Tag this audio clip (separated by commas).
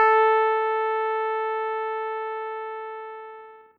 Keyboard (musical), Music, Musical instrument